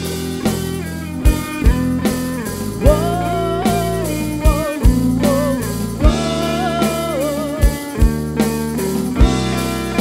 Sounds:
soul music, music

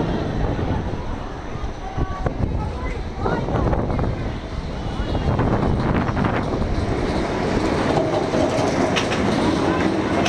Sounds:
roller coaster running

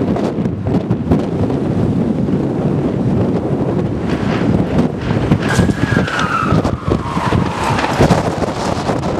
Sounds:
wind noise (microphone), wind

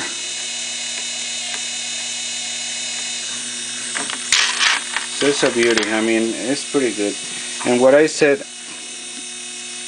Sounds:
mechanisms, gears, ratchet

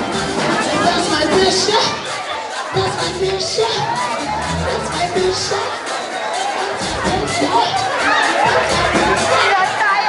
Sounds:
speech, music, inside a large room or hall

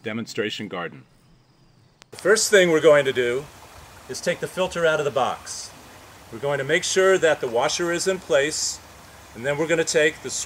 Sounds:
speech

